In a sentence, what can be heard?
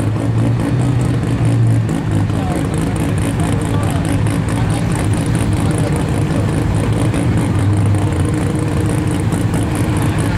An engine revs as people talk